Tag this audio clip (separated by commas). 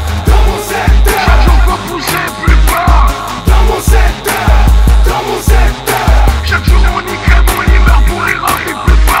Music